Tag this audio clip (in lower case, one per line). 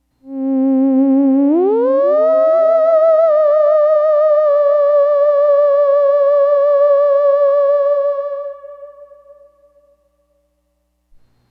musical instrument
music